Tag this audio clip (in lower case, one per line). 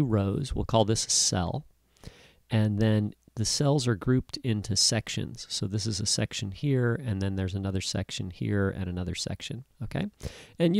speech